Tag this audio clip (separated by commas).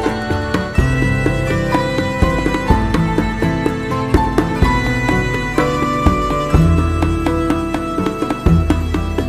Music